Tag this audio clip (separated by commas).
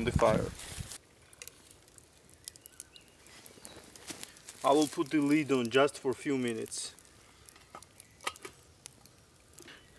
Fire, outside, rural or natural, Speech